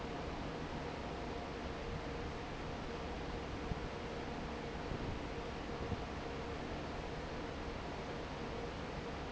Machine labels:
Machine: fan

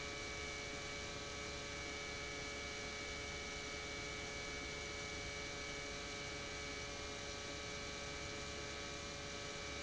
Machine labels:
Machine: pump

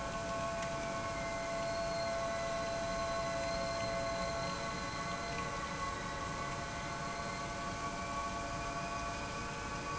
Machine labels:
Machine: pump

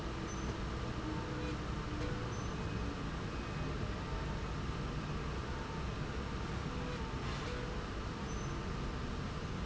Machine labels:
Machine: slide rail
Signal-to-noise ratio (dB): -6 dB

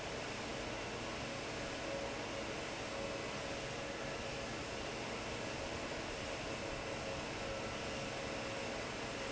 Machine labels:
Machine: fan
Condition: abnormal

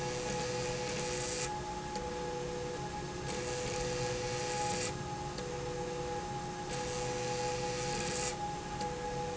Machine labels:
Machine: slide rail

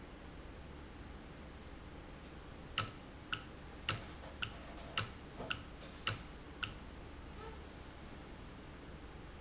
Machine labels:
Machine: valve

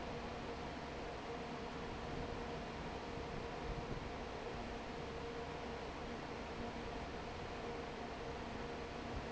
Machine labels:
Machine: fan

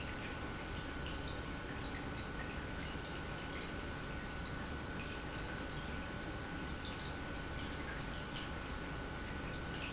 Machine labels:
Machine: pump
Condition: normal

